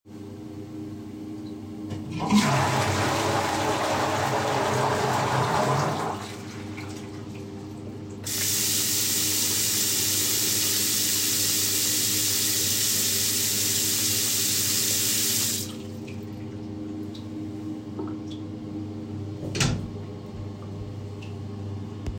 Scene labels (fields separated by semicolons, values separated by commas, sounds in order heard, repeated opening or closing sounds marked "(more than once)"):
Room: lavatory; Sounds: toilet flushing, running water, door